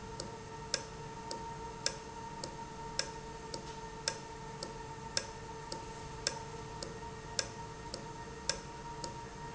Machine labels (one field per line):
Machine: valve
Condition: normal